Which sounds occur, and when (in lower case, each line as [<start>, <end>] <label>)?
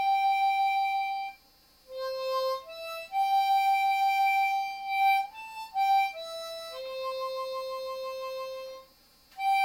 [0.00, 1.38] music
[0.00, 9.64] mechanisms
[1.83, 8.80] music
[9.28, 9.64] music